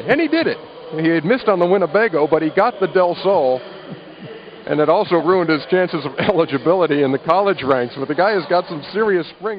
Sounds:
Speech

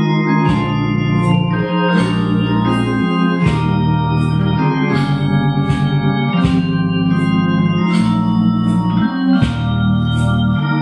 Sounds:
Music, playing electronic organ, Electronic organ

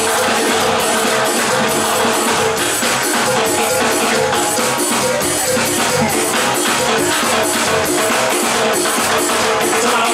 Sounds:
Music

